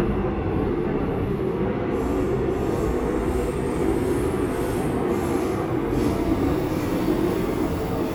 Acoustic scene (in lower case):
subway train